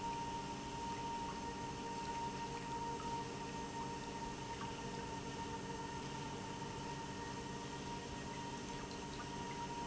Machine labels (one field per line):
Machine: pump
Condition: normal